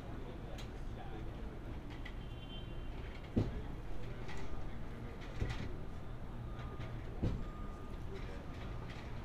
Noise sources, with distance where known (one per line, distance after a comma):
car horn, far
person or small group talking